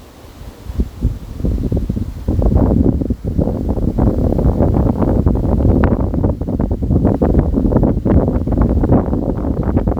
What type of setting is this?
park